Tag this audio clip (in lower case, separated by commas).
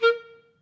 music, musical instrument, woodwind instrument